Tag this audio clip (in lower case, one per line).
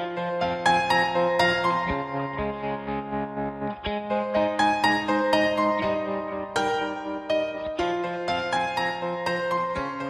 music